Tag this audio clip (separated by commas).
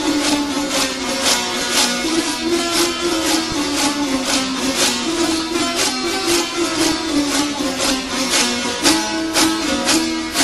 Music